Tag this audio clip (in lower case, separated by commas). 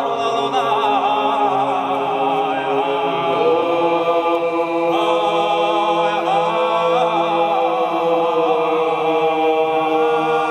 mantra